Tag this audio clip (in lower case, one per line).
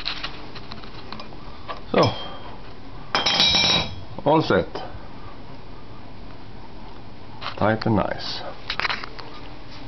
speech